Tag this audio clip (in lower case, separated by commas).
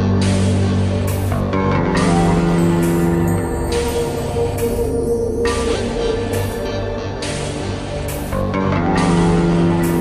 music